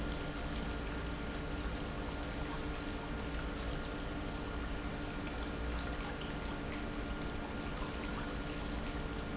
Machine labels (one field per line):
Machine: pump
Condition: normal